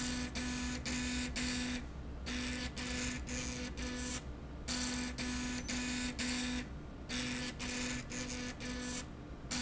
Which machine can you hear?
slide rail